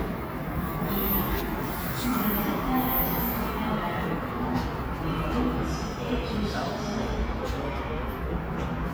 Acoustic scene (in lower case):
subway station